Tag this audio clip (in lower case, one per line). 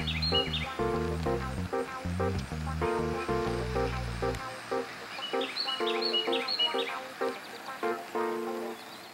music